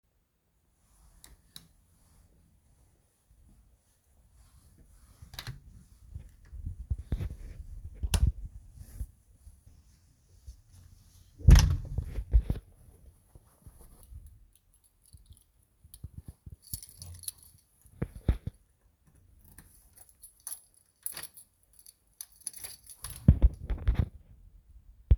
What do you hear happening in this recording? i turned off the lights then unlocked the door. i went out and locked the door behind me